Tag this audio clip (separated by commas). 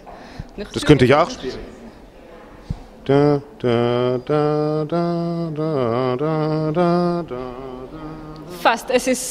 Speech, Echo